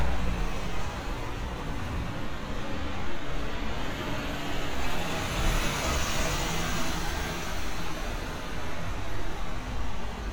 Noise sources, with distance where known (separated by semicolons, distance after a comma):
large-sounding engine, near